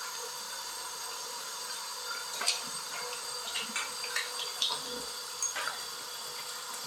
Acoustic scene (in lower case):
restroom